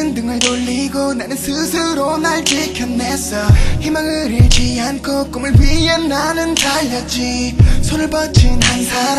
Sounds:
Music

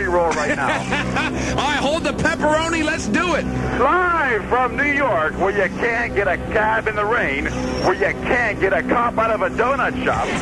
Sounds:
Speech

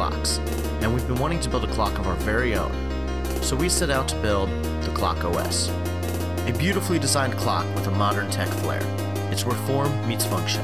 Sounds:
Speech, Music

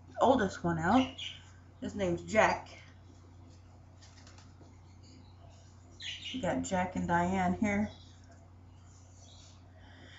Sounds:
Pigeon, Animal, Speech, inside a small room

